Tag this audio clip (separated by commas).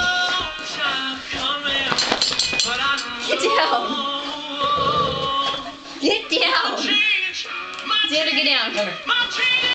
Speech, Yip, Music